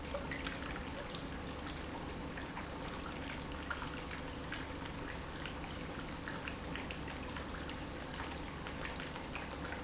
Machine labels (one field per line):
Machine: pump